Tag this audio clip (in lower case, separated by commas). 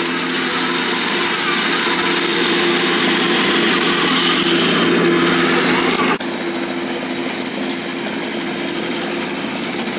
engine knocking, engine, power tool, tools